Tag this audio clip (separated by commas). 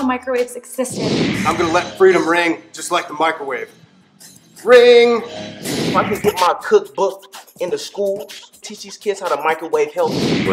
Music, Speech